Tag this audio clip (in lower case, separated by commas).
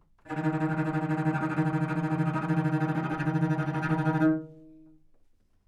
musical instrument, bowed string instrument, music